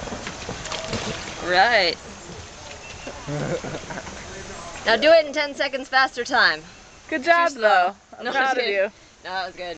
A woman speaks to a man with a stream nearby